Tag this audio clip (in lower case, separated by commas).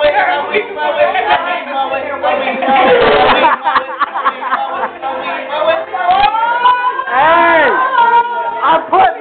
male singing, speech, music